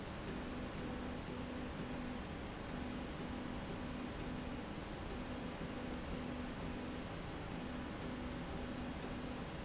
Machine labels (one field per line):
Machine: slide rail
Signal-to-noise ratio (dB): 0 dB